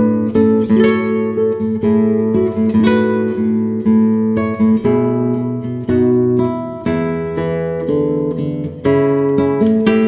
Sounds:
Music

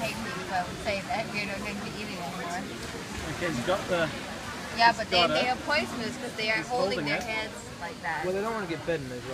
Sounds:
Speech

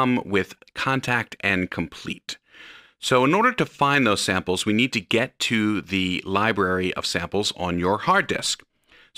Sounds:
Speech

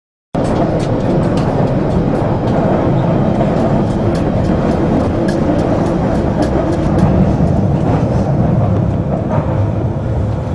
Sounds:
subway

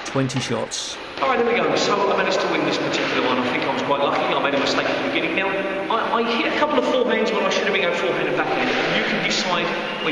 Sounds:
playing squash

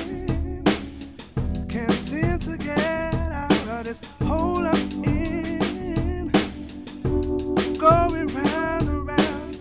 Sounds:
Music

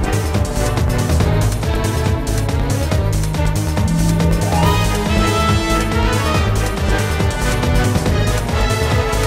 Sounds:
Music

